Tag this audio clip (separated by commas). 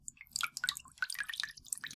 Drip, Liquid